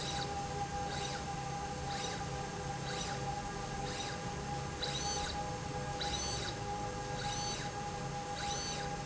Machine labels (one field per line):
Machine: slide rail